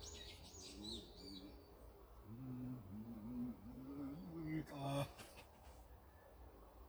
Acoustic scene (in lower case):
park